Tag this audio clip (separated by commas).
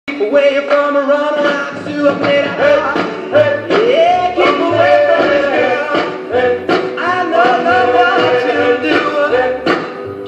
Music of Latin America